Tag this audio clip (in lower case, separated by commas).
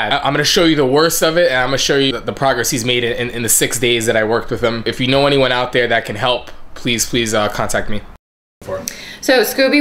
speech